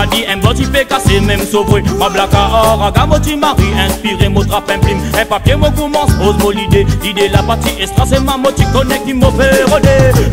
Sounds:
Music

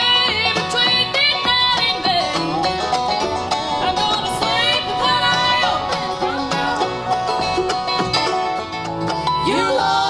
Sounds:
Music, Singing, Bluegrass, playing banjo, Banjo

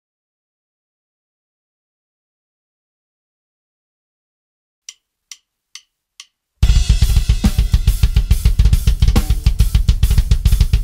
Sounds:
playing double bass

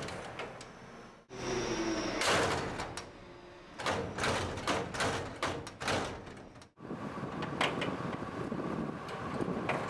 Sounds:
Slam, Door

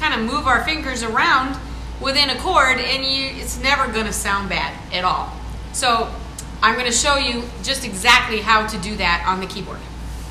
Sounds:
woman speaking, Speech

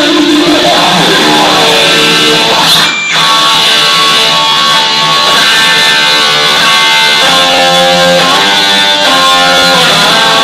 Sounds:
Music

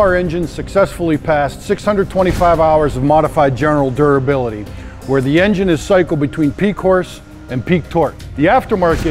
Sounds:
Speech, Music

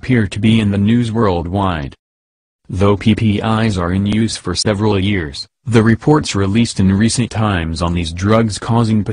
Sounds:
Speech

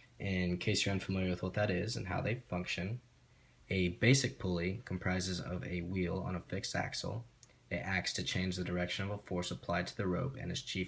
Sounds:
Speech

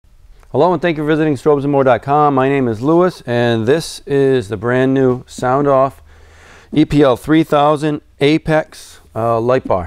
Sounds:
Speech

